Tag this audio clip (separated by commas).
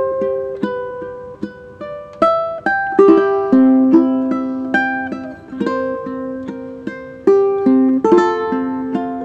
Ukulele, Music